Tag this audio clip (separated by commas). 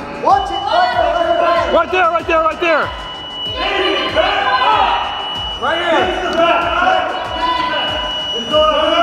Speech, Music